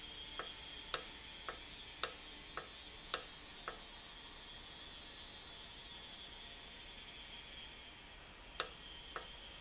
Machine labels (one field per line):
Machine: valve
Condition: normal